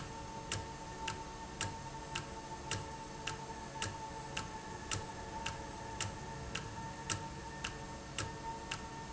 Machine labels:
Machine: valve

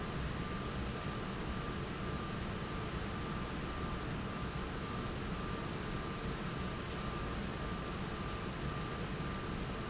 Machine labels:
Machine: fan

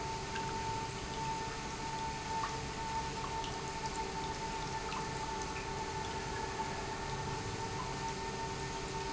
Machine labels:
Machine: pump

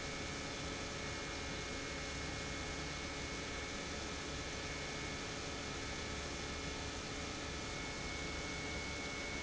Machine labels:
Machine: pump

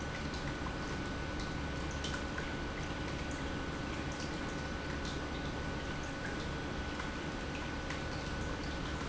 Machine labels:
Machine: pump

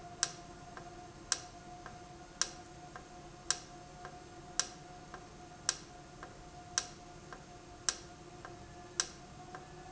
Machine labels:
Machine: valve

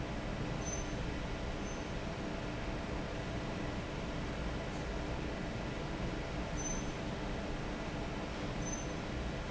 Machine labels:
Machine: fan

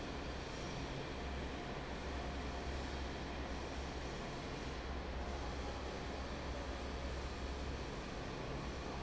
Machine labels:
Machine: fan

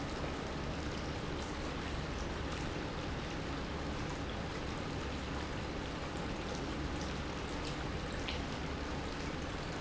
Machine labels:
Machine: pump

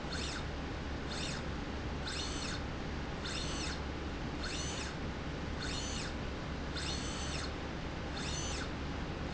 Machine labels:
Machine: slide rail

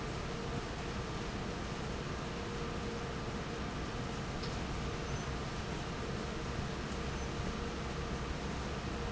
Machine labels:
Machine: fan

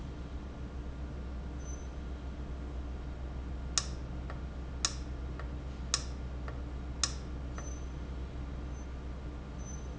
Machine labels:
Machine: valve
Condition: abnormal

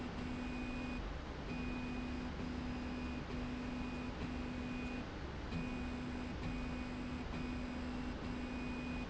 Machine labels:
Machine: slide rail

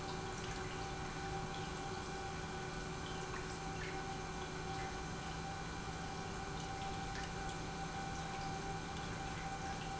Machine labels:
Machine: pump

